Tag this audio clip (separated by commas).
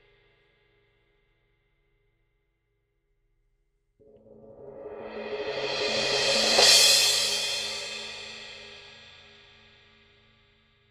playing cymbal